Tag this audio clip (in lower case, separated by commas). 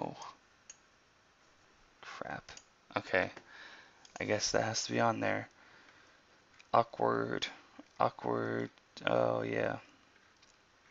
speech, inside a small room, clicking